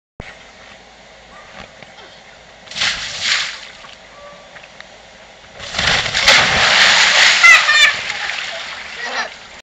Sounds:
Stream, Gurgling

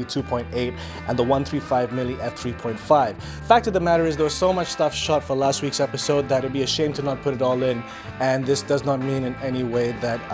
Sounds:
Speech, Music

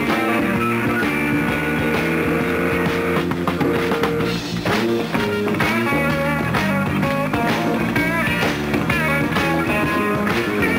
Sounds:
Music, Rock and roll

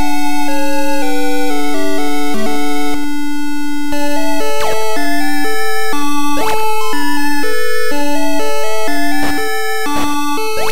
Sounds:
Video game music

